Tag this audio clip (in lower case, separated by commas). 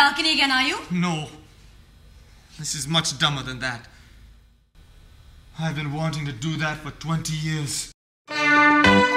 speech, music